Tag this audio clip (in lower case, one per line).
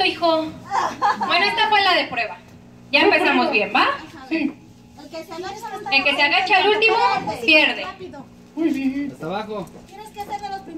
speech